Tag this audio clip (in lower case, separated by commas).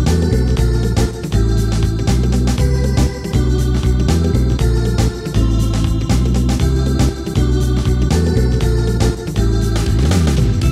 music